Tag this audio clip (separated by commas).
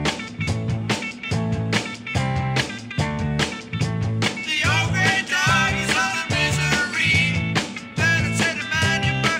Music